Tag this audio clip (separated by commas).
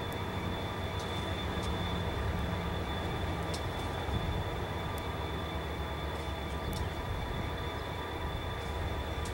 train wagon, Train, Vehicle, outside, rural or natural